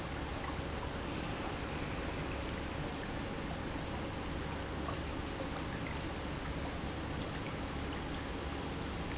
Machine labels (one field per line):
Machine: pump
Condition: normal